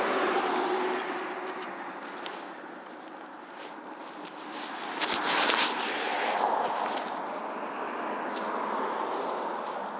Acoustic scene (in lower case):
street